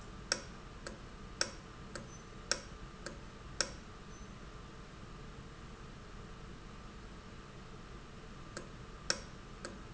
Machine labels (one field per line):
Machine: valve